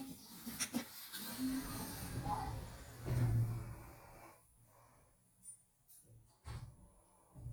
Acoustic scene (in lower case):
elevator